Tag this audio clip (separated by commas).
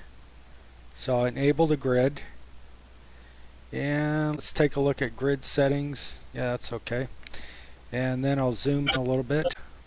Speech